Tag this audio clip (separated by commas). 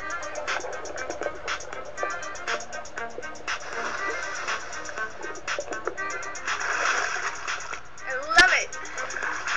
Music, Speech